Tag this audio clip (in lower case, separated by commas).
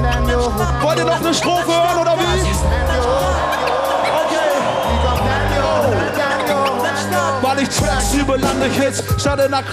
speech, music